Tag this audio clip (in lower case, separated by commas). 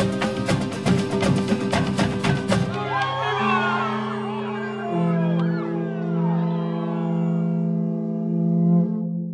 music, speech, electronic tuner, guitar